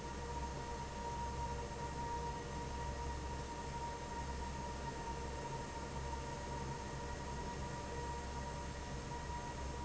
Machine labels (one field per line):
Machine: fan